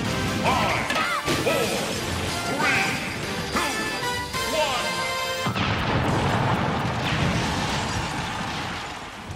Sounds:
music
speech
smash

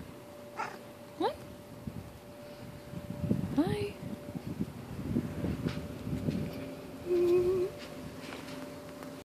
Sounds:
animal
cat
pets
speech

